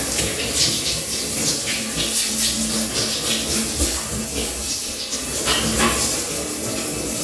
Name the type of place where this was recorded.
restroom